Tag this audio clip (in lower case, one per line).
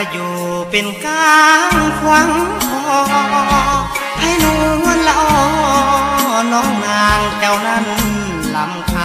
music
country